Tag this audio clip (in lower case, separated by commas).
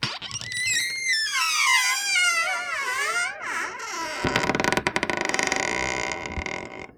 squeak